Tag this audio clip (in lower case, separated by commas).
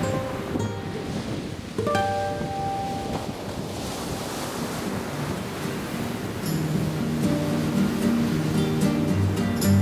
music